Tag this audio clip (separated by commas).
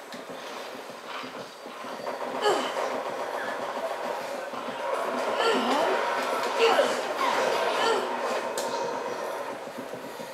outside, urban or man-made, Speech